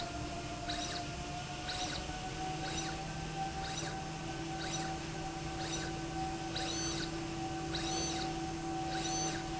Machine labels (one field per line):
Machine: slide rail